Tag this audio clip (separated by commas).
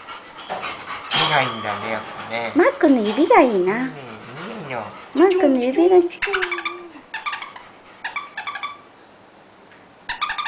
Animal, Speech, Dog, Domestic animals